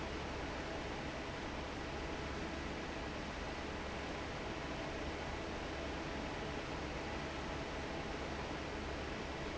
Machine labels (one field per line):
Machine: fan